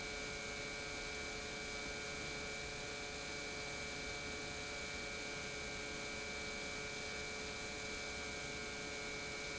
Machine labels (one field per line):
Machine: pump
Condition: normal